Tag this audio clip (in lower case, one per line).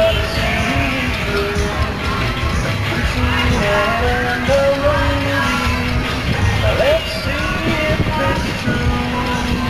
music